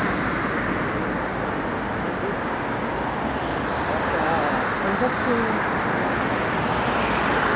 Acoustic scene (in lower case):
street